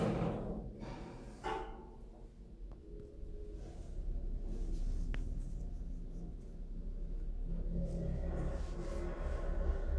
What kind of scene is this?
elevator